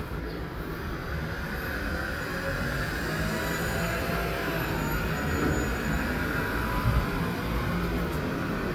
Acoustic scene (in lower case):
street